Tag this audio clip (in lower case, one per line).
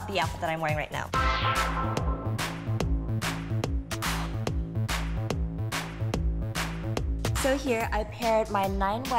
music
speech